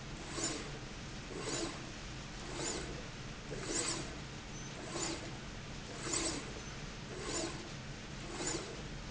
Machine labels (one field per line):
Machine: slide rail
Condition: abnormal